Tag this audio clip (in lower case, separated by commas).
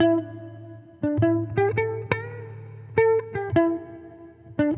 guitar, plucked string instrument, music, electric guitar, musical instrument